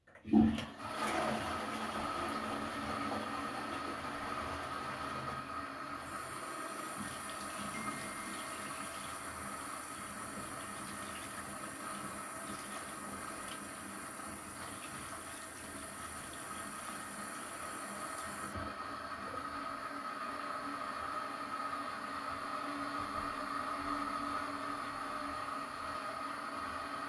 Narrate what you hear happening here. After flushing the toilet, I washed my hands while doing so I received a notification on my phone.